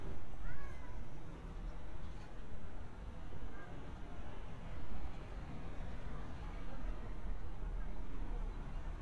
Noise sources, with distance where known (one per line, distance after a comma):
person or small group talking, far